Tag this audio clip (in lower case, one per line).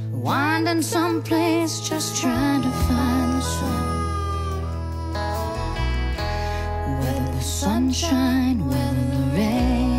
music